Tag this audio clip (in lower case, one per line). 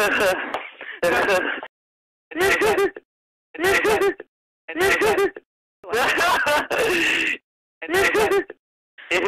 giggle